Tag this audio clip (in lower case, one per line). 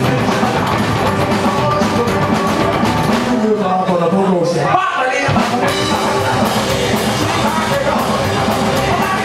musical instrument
plucked string instrument
acoustic guitar
music
guitar